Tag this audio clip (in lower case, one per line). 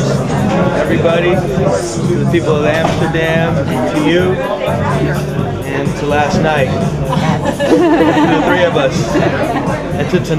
speech
music